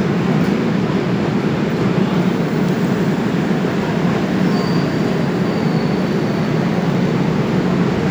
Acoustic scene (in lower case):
subway station